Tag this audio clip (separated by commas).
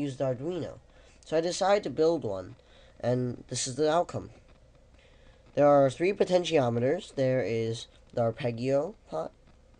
Speech